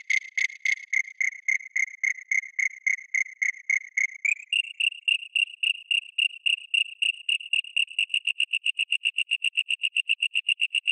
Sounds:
cricket chirping

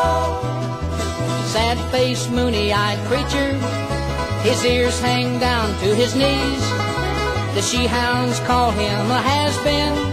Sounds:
Music, Bluegrass, Country

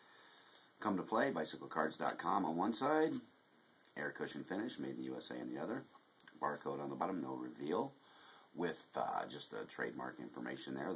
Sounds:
Speech

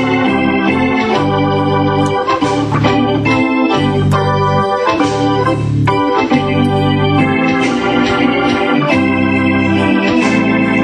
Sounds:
Organ, Electronic organ

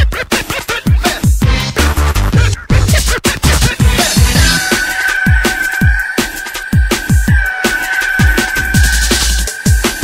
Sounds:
Music, Drum and bass

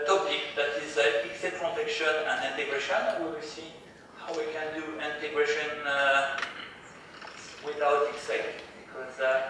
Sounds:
Speech

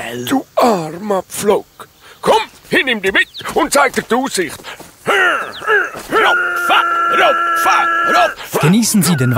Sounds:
Speech

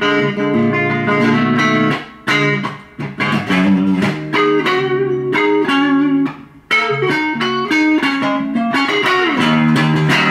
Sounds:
Music, Guitar, playing electric guitar, Plucked string instrument, Musical instrument, Electric guitar

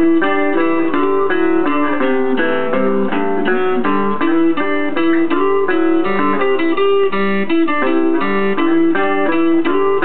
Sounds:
Music

